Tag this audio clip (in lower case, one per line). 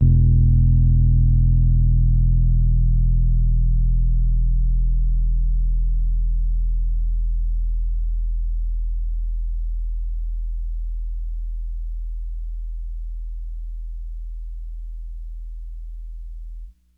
musical instrument
keyboard (musical)
piano
music